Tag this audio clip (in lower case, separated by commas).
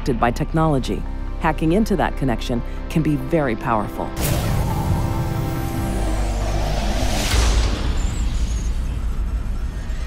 music, speech